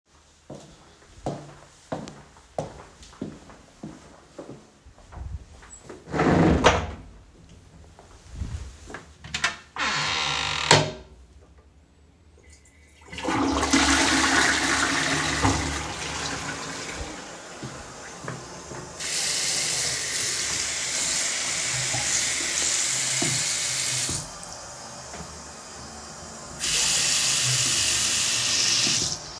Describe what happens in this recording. The recorder moves into the bathroom area and the door is opened or closed. The toilet is flushed and running water starts immediately afterward. Part of the water sound overlaps with the end of the flush.